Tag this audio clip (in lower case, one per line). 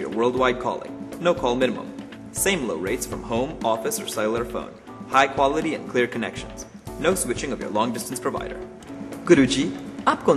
music
speech